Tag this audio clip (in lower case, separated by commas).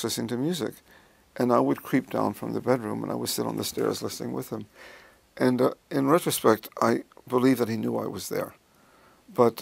speech